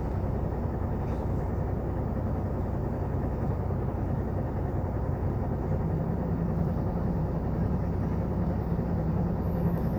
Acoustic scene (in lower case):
bus